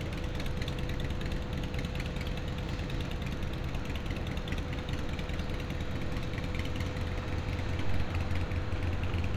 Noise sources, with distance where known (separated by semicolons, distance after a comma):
medium-sounding engine, near